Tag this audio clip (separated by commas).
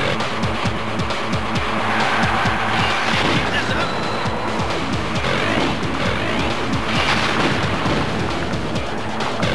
Music, Speech